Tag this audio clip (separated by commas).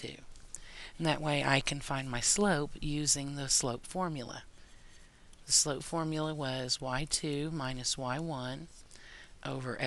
Speech, Writing